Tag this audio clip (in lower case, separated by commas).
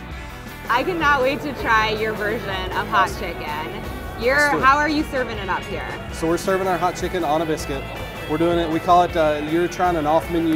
speech, music